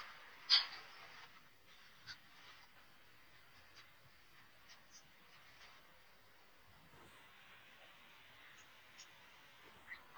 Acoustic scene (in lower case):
elevator